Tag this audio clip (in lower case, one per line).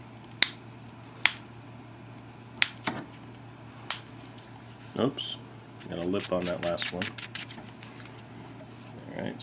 speech